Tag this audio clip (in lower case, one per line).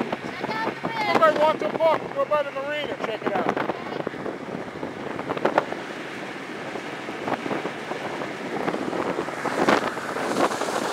wind
speedboat
wind noise (microphone)
water vehicle